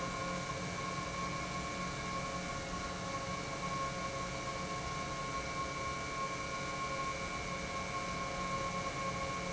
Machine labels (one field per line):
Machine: pump